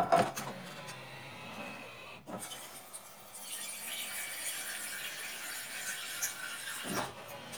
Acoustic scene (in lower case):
kitchen